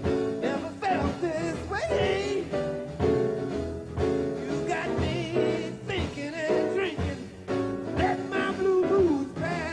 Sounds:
Saxophone, Jazz, Music, Gospel music, Song

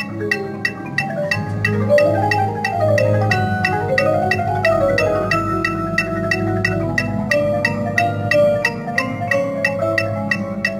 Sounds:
Music

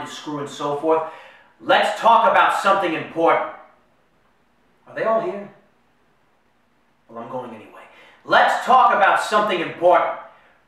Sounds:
Speech, Male speech, Narration

